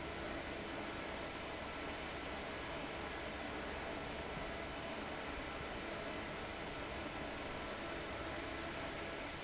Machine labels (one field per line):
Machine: fan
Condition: abnormal